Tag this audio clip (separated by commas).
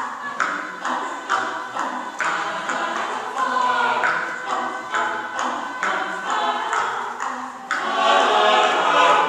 Music